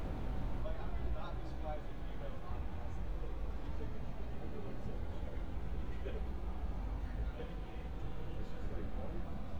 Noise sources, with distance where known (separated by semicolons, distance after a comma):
person or small group talking